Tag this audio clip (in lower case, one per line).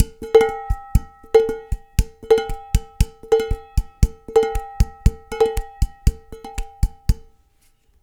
home sounds
dishes, pots and pans